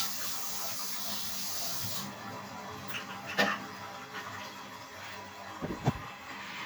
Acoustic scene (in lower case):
restroom